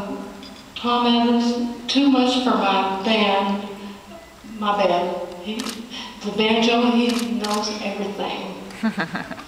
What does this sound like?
She is giving a speech